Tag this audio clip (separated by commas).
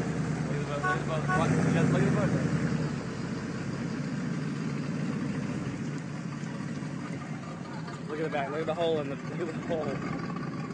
Speech, Vehicle